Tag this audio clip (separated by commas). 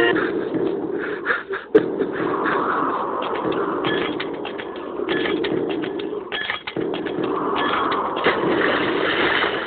Sound effect